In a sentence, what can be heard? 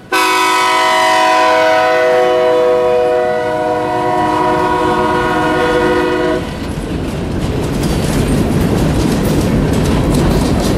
Train horn and sounds from the wheels on the tracks